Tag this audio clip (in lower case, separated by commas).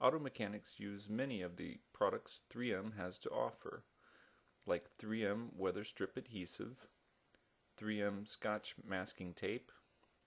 speech